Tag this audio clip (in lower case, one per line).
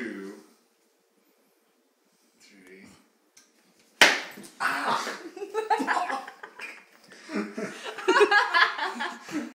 speech